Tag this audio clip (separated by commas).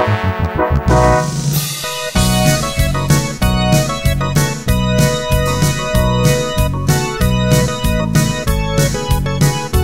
Music